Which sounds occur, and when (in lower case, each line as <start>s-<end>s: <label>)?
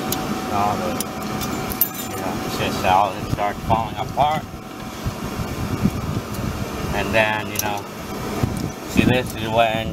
0.0s-9.9s: vehicle
1.9s-2.4s: human voice
8.9s-9.9s: male speech
8.9s-9.9s: wind noise (microphone)
9.2s-9.5s: generic impact sounds